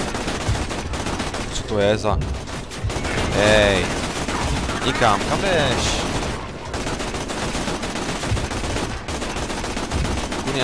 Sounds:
speech, fusillade

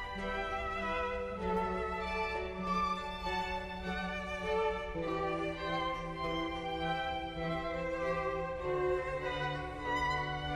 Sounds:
fiddle, music, musical instrument

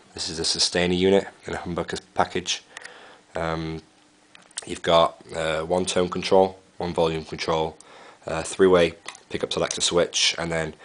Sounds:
speech

